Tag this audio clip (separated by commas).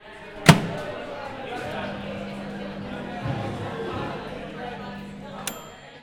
Microwave oven, Domestic sounds